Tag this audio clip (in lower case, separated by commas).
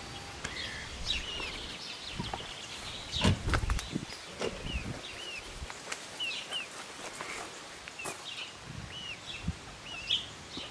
bird, outside, rural or natural, rooster